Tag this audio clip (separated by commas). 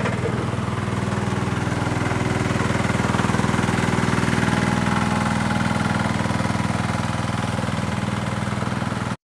Vehicle, Truck